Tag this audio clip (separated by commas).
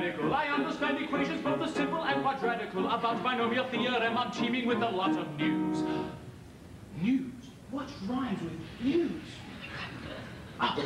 Music